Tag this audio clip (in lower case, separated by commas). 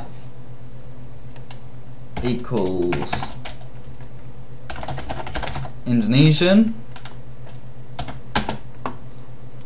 computer keyboard, speech synthesizer, speech, typing